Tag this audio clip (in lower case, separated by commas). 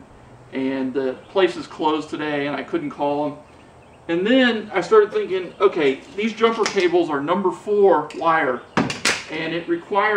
speech